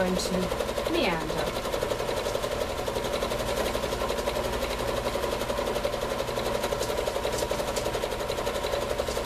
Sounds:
inside a small room, Sewing machine, Speech

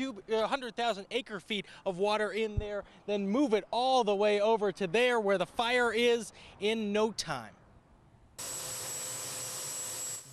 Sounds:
Speech

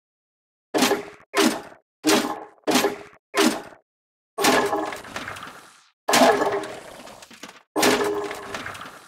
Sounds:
Breaking

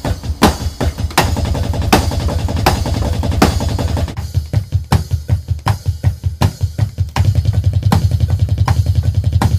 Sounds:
playing bass drum

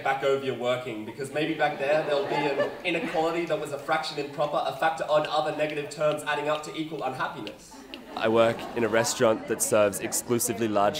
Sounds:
Speech

